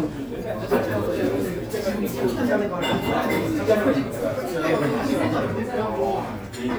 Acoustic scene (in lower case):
restaurant